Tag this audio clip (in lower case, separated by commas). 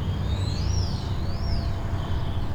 bird, animal, wild animals